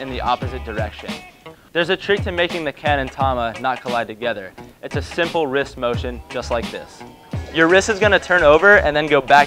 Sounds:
music, speech

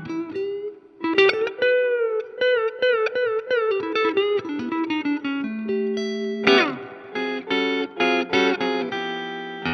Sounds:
music, electric guitar, musical instrument, effects unit, guitar, plucked string instrument

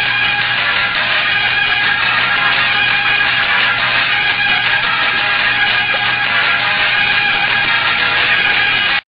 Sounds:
music

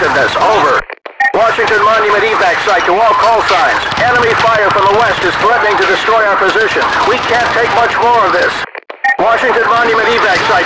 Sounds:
police radio chatter

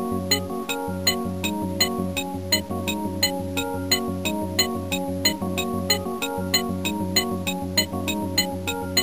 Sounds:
video game music, music

